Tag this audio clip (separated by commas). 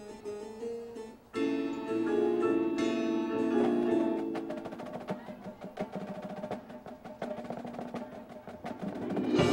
Harpsichord